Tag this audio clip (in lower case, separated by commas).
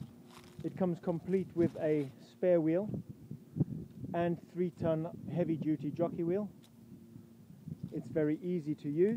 speech